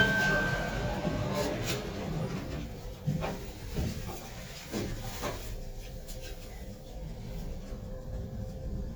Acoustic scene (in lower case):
elevator